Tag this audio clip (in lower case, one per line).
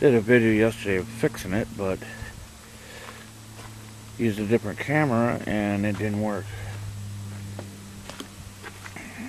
speech